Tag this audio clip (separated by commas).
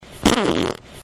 Fart